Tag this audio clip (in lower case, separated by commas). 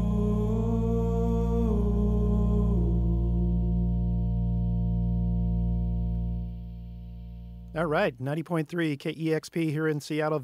music, singing, echo, speech